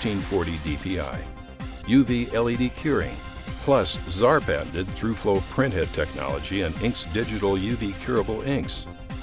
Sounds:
music, speech

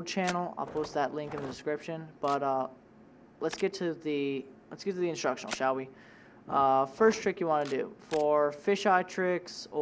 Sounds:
single-lens reflex camera, speech

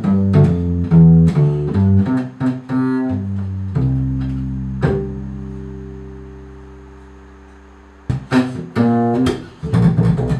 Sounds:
bowed string instrument, cello, double bass, pizzicato

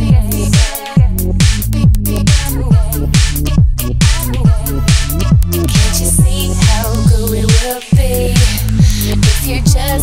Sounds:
electronic music, music

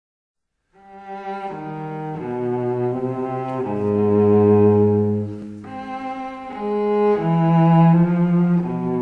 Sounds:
double bass, cello, music

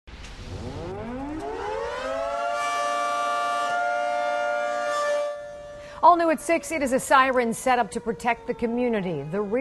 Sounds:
civil defense siren, siren

